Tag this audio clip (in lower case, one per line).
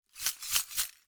glass